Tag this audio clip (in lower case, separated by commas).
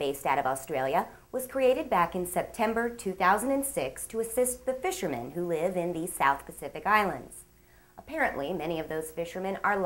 speech